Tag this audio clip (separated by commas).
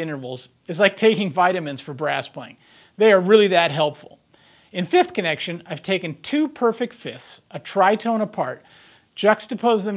Speech